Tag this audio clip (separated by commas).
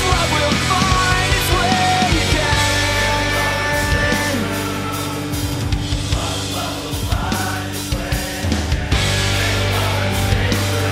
Music